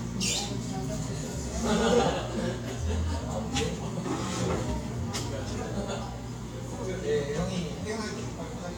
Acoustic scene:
cafe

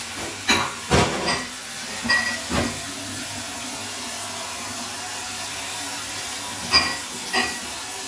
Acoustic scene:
kitchen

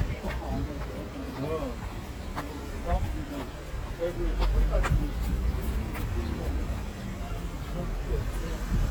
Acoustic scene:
street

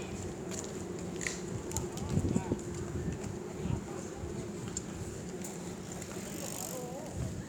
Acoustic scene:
park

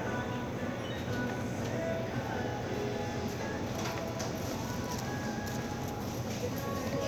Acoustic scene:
crowded indoor space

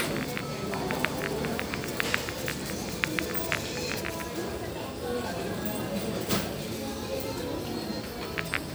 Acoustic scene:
crowded indoor space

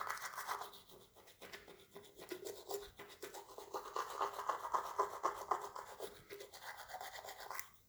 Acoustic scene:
restroom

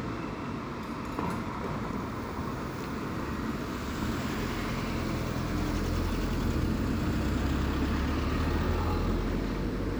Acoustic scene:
residential area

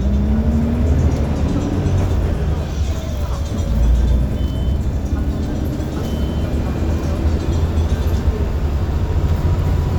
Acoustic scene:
bus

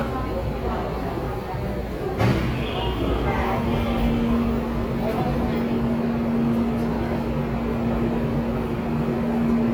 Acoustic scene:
subway station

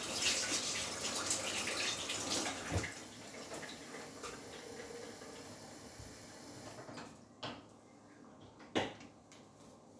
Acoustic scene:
kitchen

